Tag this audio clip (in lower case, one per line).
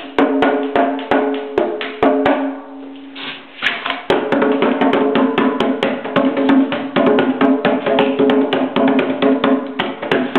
wood block
percussion
drum
musical instrument
music